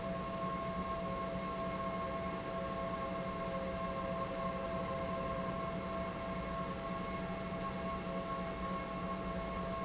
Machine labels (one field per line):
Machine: pump